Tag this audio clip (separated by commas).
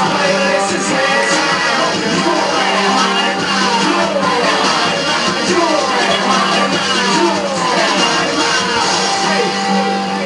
Music